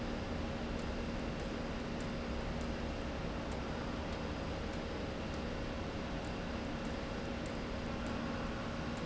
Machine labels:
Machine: slide rail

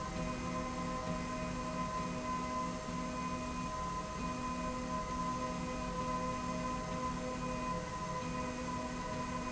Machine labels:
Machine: slide rail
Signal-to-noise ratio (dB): -6 dB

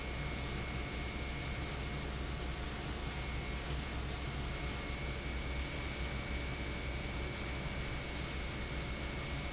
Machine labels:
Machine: pump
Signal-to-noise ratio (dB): -6 dB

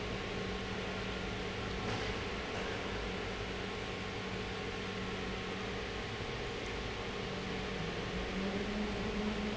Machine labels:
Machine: pump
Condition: normal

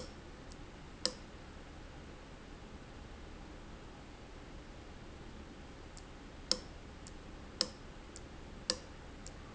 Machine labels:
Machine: valve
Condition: abnormal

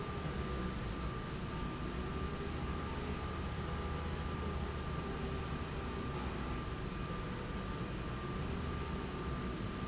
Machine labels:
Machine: slide rail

